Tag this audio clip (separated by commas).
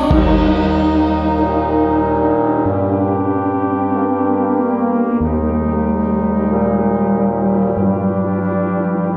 Brass instrument